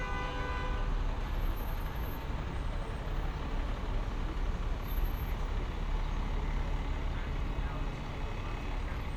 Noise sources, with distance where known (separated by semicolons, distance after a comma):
car horn; person or small group talking, far